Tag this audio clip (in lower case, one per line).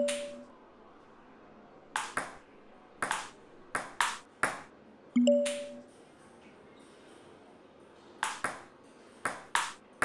playing table tennis